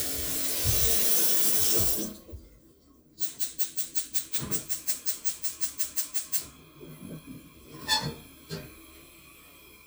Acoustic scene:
kitchen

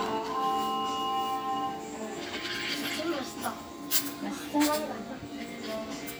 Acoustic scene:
cafe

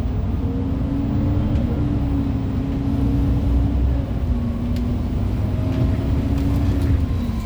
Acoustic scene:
bus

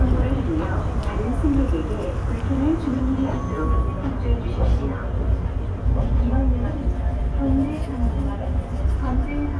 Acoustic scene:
subway train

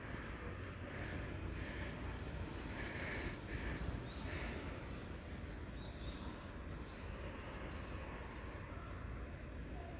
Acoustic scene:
residential area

